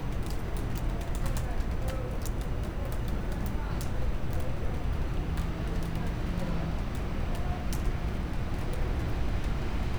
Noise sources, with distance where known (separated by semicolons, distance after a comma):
person or small group talking